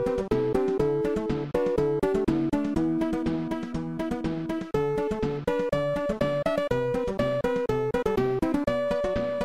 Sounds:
music

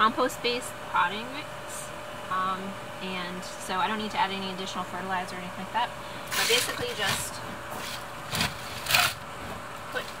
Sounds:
inside a small room
speech

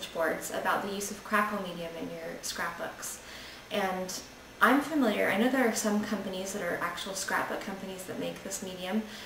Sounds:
speech

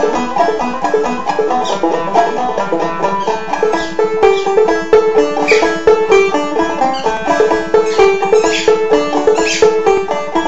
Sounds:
music

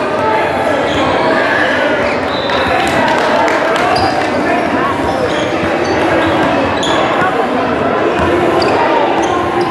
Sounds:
basketball bounce

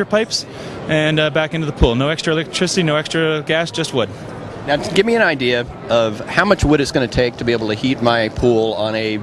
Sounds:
speech

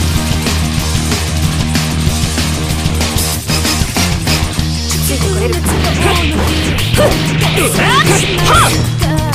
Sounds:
music

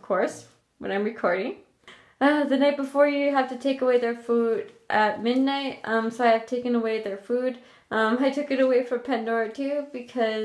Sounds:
speech

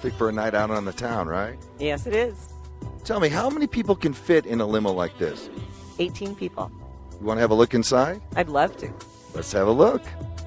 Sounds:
music
speech

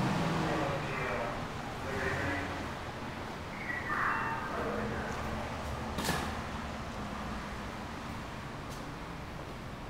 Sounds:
speech

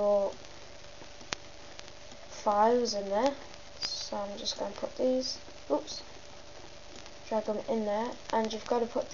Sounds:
speech

